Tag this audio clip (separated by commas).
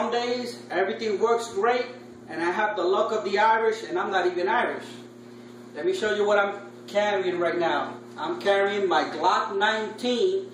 Speech